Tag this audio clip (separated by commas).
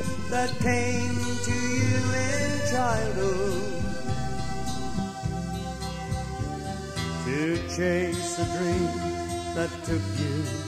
Music